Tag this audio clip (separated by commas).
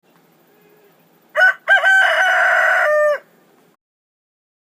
livestock, Chicken, Fowl, Animal